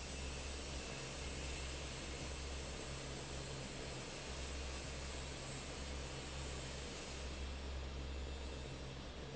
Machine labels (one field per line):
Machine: fan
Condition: normal